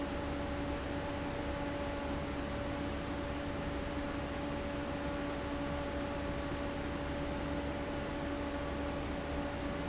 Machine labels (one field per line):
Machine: fan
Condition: abnormal